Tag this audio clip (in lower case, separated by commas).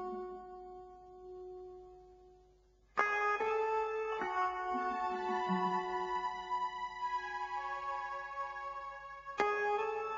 music